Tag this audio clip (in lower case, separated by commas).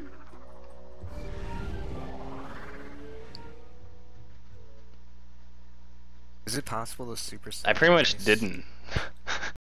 speech, music